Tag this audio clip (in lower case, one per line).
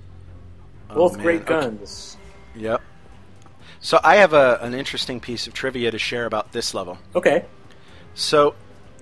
speech
music